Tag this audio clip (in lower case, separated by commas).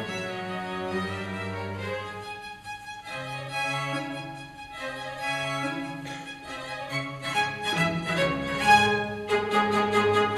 music